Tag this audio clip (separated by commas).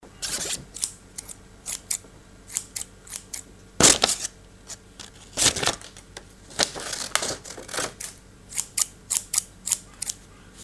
Domestic sounds, Scissors